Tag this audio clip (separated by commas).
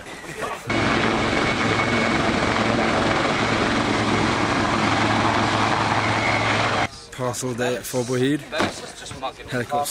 outside, rural or natural, Speech, Helicopter